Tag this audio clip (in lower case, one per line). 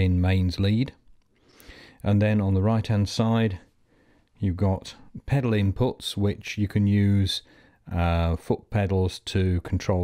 speech